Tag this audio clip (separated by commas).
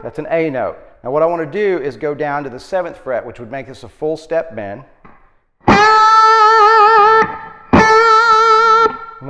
Plucked string instrument, Music, Musical instrument, Speech, Bass guitar